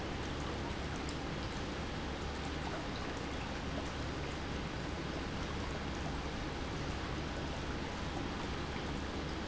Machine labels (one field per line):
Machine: pump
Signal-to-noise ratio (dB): -6 dB